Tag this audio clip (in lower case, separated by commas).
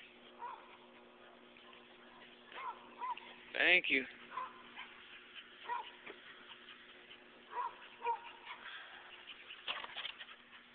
speech, bow-wow, dog, animal, domestic animals